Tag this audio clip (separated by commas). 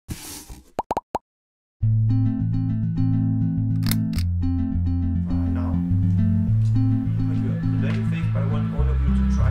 Music, Speech